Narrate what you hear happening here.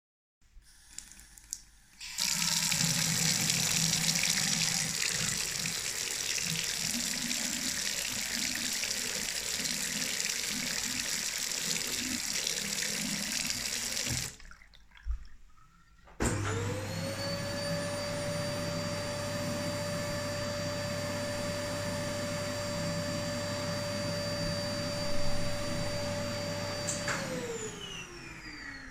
i run water and then i move to the vacuum cleaner to power on